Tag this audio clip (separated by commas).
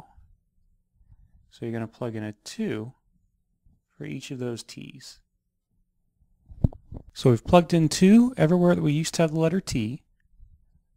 Speech, inside a small room